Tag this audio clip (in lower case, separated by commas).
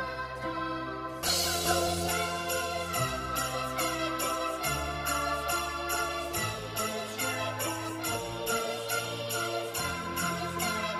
jingle bell